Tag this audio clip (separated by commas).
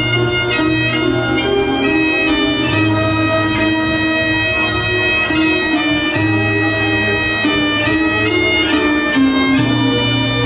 Wind instrument, Bagpipes, playing bagpipes